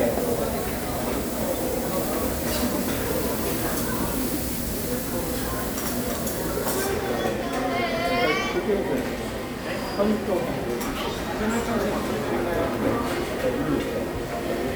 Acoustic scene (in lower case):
restaurant